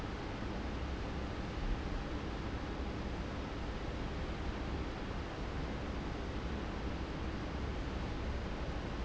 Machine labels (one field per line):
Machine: fan